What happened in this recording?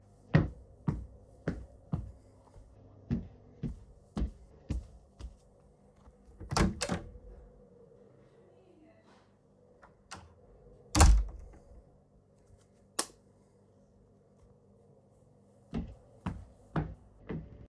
I walk toward the door, open it, and enter the room. After stepping inside, I switch the light on and continue walking for a few more steps.